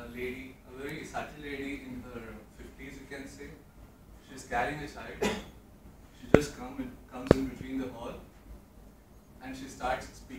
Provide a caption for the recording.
A person having a speech